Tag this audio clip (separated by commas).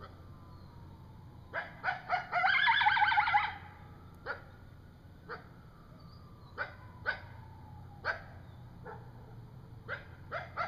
coyote howling